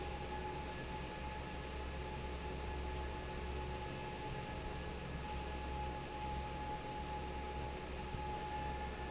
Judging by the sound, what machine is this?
fan